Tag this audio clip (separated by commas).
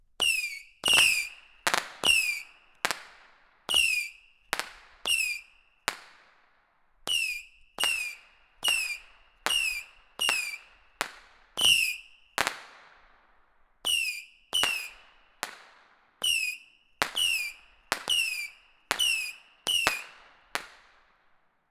Fireworks, Explosion